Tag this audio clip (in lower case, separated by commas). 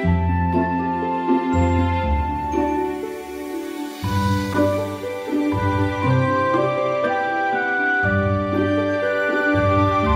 music, musical instrument, drum